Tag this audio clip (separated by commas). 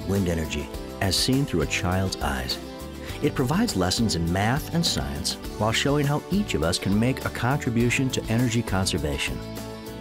Speech, Music